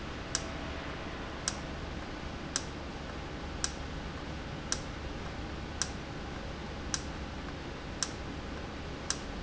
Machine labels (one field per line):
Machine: valve